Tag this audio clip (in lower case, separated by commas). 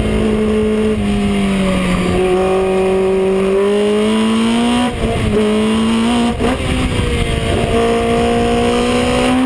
car, vehicle